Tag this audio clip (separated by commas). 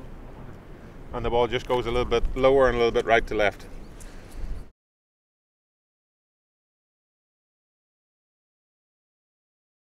Rustling leaves, Speech